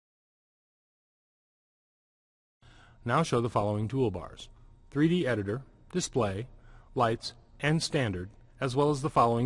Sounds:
Speech

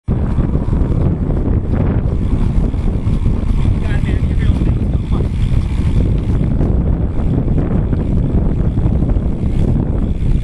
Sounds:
Speech, Bicycle, outside, rural or natural

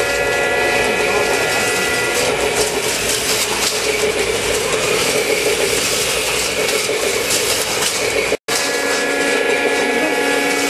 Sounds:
Vehicle

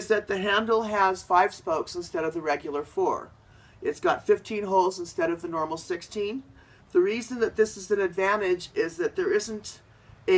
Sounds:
Speech

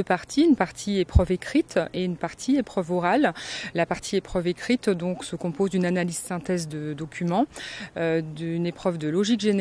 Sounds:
Speech

